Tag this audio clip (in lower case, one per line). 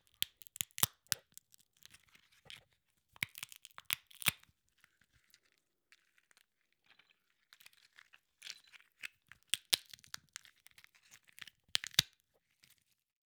crack